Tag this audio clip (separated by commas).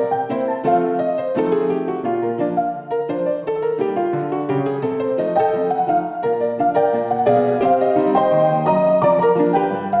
Music, Pop music